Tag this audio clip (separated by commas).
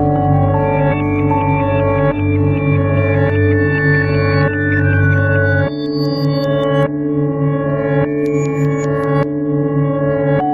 Music